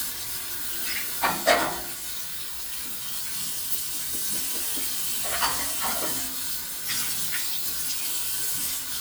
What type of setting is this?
restroom